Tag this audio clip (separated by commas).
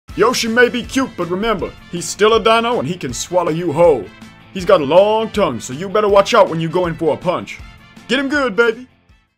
Music, Speech